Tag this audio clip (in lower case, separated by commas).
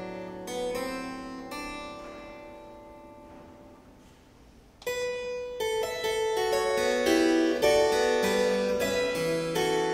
keyboard (musical), piano